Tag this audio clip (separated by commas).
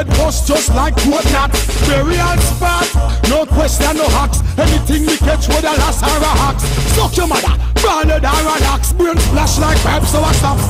Music